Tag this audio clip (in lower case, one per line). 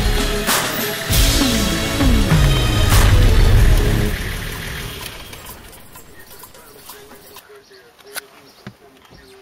vehicle
music
car
speech